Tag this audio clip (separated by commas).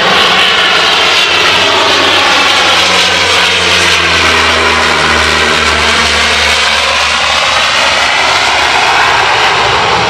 Vehicle, airplane, Aircraft